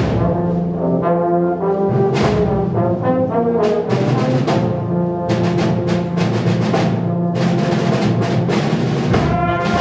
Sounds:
background music, music

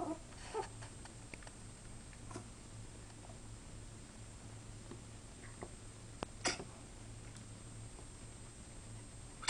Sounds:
domestic animals, dog, animal

